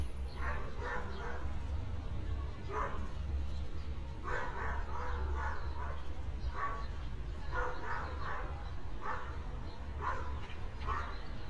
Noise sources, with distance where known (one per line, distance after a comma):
dog barking or whining